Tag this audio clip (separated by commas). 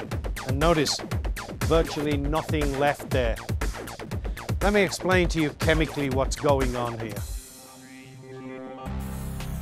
Music, Speech